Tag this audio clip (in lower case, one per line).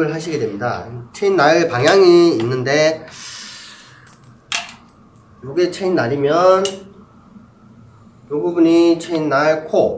speech
tools